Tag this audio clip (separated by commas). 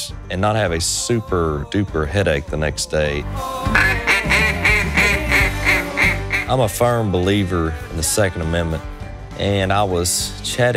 Speech, Music